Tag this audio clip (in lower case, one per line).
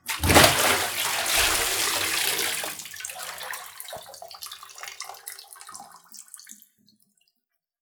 home sounds
liquid
bathtub (filling or washing)
splash